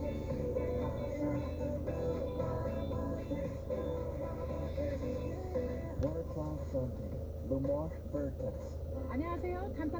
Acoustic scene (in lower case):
car